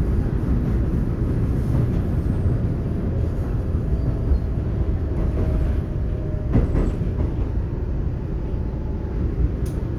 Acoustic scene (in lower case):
subway train